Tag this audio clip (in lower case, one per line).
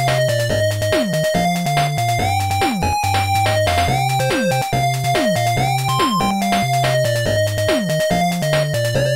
music